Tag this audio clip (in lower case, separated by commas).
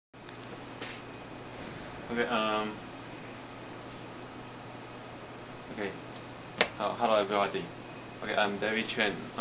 speech, microwave oven